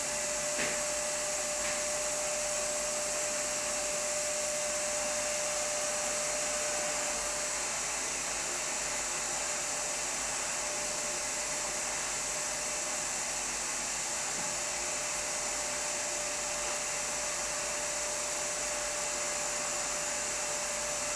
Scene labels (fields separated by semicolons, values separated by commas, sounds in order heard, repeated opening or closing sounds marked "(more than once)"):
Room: living room; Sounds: vacuum cleaner